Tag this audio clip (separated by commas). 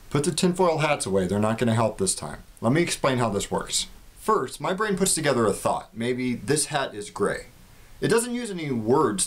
Speech